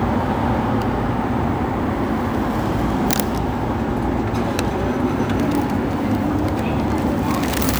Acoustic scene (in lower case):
elevator